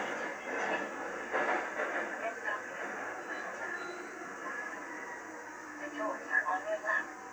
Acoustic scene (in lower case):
subway train